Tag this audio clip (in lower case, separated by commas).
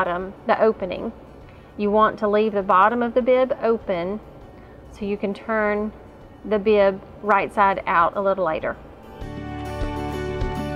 music, sewing machine, speech